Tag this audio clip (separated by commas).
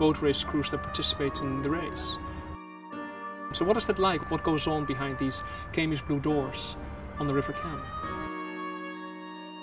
Speech, Music